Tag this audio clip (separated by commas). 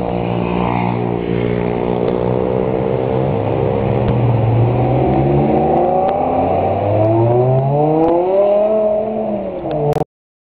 vroom, Car, Vehicle